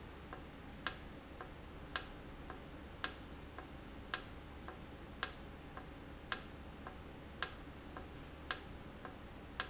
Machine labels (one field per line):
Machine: valve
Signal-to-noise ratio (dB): 6 dB